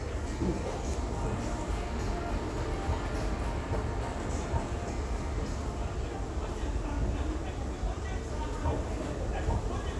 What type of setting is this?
crowded indoor space